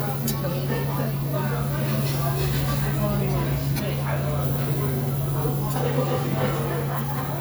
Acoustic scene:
restaurant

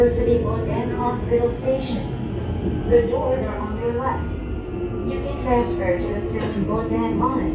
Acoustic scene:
subway train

